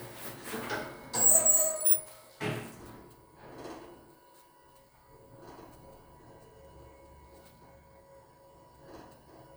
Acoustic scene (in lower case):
elevator